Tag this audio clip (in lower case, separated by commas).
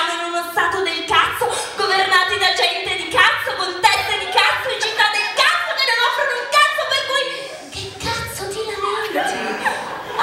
speech